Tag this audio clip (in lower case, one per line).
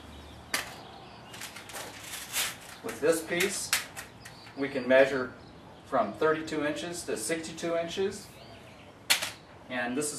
speech